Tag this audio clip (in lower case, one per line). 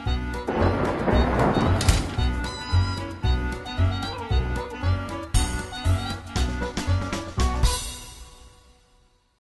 music